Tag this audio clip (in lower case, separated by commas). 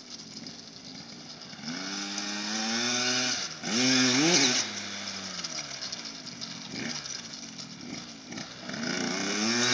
motorcycle, outside, rural or natural, driving motorcycle, vehicle